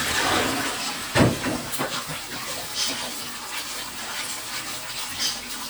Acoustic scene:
kitchen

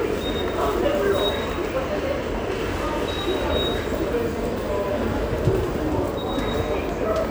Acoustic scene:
subway station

